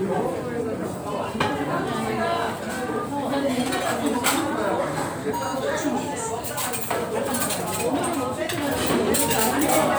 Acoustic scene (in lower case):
restaurant